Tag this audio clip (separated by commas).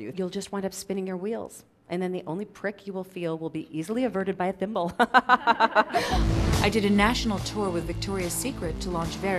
Speech, Music